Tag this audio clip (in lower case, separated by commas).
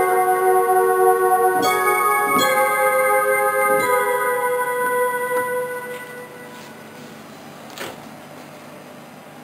piano, music, musical instrument, synthesizer, keyboard (musical)